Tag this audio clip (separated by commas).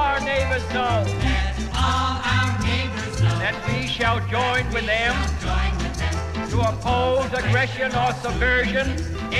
Music, Speech